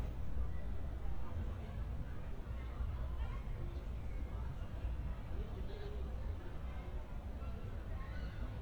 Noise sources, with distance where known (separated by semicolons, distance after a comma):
unidentified human voice, far